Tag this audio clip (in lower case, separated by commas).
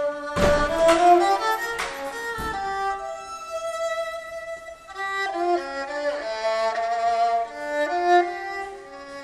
musical instrument, fiddle, music